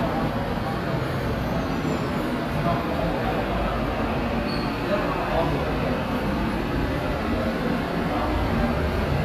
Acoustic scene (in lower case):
subway station